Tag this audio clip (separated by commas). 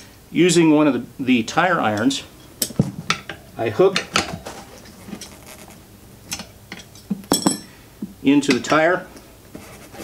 dishes, pots and pans, silverware